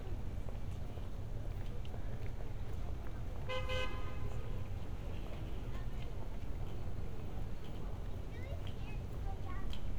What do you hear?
car horn, unidentified human voice